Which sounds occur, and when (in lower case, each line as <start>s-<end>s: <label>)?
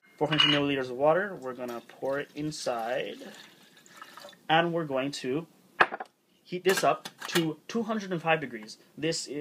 0.0s-9.4s: background noise
0.2s-1.8s: man speaking
0.3s-0.6s: glass
1.4s-4.4s: pour
2.0s-3.3s: man speaking
4.5s-5.5s: man speaking
5.8s-6.1s: glass
6.5s-7.0s: man speaking
6.7s-7.4s: silverware
7.3s-7.6s: man speaking
7.7s-8.8s: man speaking
7.8s-8.2s: generic impact sounds
8.6s-8.7s: generic impact sounds
9.0s-9.4s: man speaking